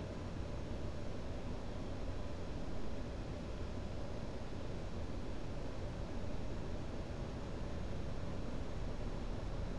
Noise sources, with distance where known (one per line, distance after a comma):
background noise